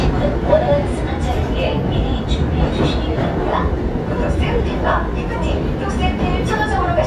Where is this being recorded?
on a subway train